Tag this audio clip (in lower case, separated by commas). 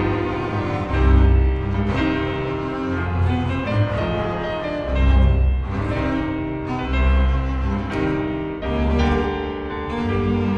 cello, music, musical instrument, double bass